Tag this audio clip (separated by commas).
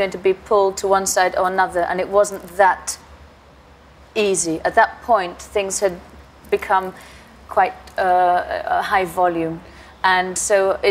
woman speaking